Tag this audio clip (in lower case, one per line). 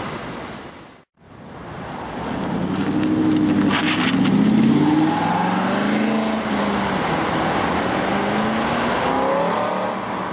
revving